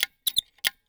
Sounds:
mechanisms

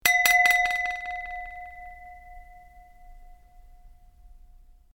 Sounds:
bell

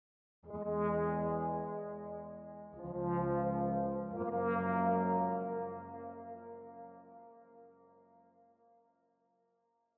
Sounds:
musical instrument, brass instrument, music

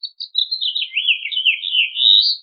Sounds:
bird, bird song, animal, wild animals

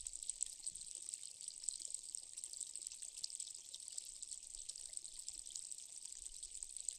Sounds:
water, stream

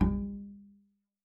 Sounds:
music, bowed string instrument, musical instrument

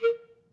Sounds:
musical instrument, woodwind instrument, music

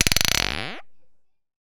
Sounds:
glass

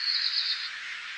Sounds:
animal, bird, wild animals

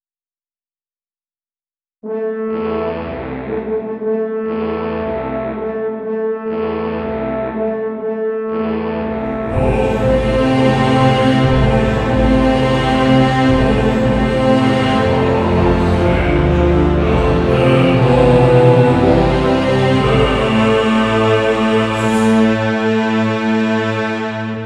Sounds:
singing, music, human voice, musical instrument

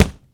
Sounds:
thump

